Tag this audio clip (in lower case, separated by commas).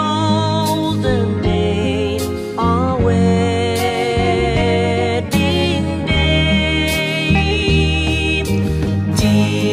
music